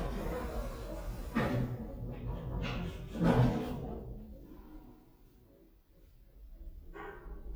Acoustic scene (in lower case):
elevator